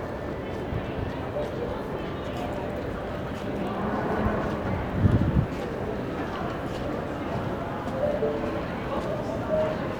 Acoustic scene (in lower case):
crowded indoor space